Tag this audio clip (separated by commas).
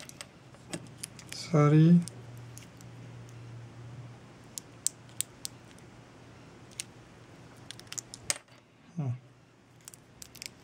Speech